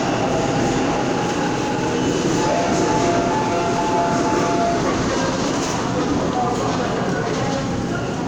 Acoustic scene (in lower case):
subway station